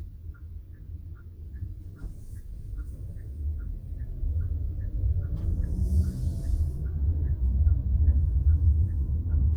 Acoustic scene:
car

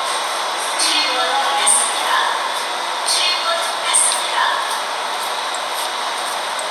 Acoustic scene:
subway train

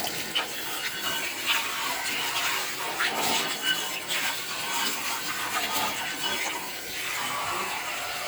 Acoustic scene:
kitchen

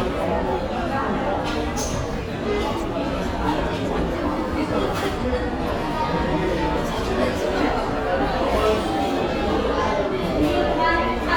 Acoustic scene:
restaurant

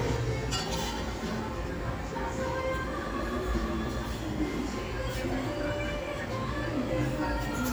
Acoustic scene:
restaurant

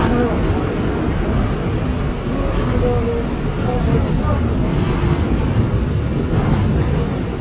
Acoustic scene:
subway train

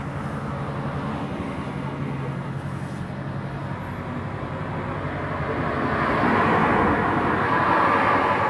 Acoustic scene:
street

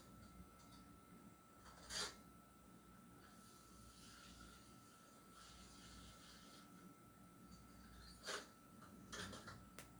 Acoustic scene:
kitchen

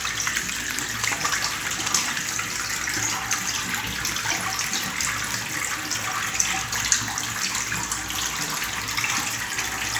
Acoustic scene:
restroom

